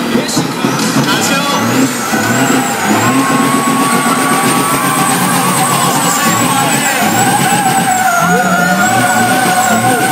Male speech and vehicle using air brake